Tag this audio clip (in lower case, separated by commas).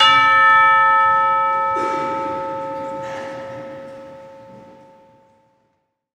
church bell, bell, percussion, musical instrument, music